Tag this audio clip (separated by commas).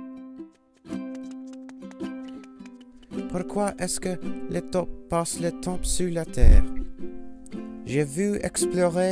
Speech, Music